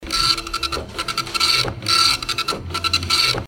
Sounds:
Mechanisms, Printer

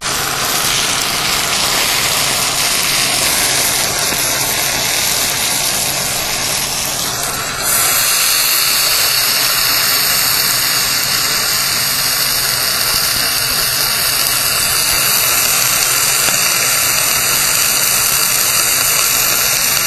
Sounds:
Frying (food), home sounds

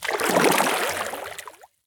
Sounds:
Liquid, splatter

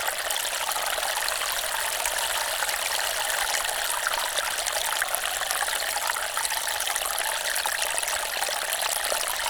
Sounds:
Water, Stream

